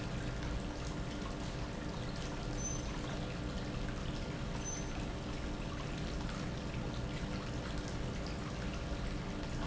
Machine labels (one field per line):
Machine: pump